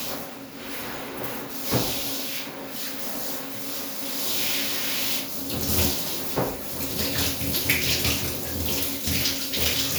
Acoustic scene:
restroom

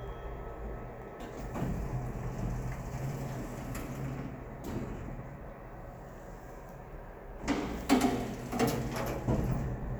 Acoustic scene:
elevator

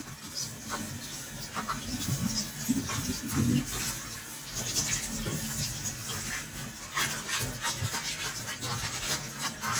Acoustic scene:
kitchen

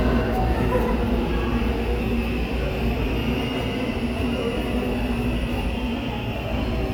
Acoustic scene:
subway station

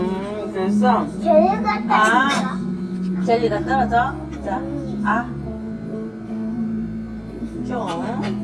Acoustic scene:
restaurant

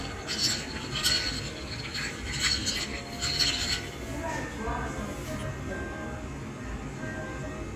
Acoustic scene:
cafe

